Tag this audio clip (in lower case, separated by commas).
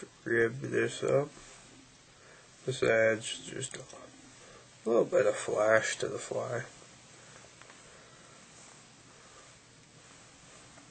speech